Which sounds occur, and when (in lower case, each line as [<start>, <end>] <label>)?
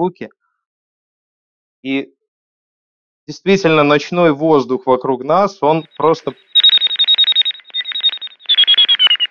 [0.00, 0.33] man speaking
[0.38, 0.67] breathing
[1.80, 2.17] man speaking
[3.25, 6.34] man speaking
[5.65, 9.30] alarm